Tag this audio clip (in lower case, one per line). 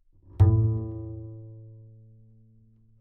bowed string instrument
musical instrument
music